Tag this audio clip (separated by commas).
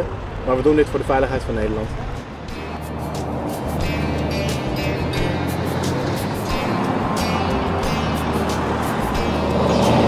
Vehicle, Speech, Music